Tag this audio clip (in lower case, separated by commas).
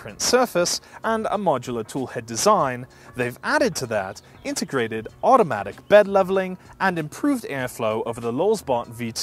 speech